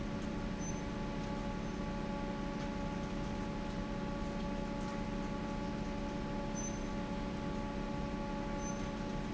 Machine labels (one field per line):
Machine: fan